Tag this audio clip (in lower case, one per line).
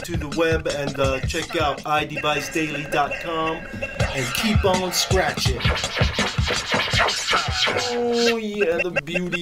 disc scratching